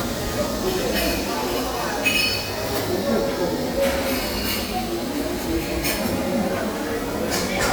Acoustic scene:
restaurant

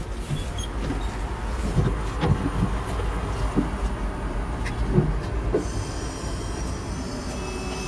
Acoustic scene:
bus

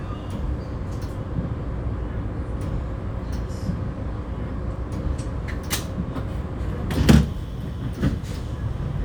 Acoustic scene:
bus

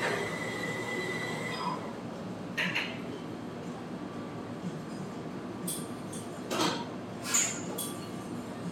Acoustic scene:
cafe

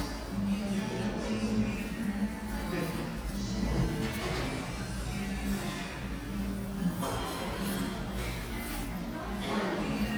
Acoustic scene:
cafe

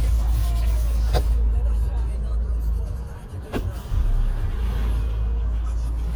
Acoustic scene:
car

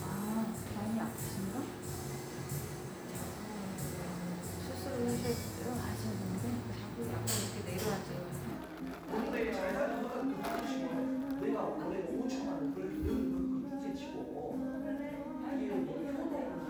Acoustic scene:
cafe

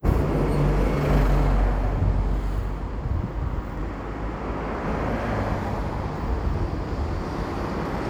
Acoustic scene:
street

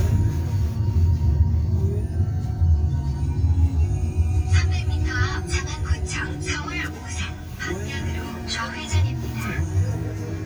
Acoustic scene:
car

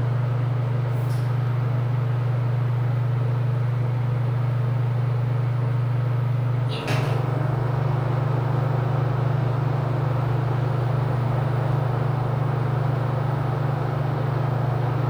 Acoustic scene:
elevator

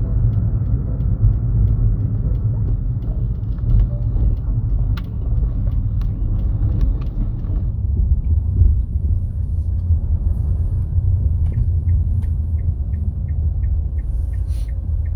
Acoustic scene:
car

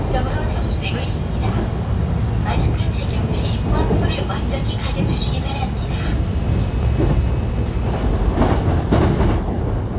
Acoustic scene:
subway train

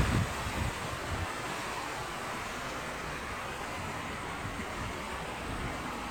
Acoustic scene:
park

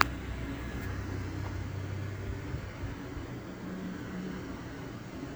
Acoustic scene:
residential area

